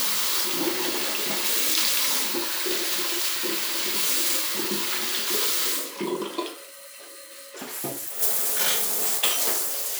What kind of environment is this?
restroom